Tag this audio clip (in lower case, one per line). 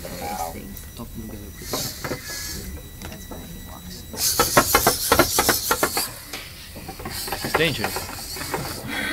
speech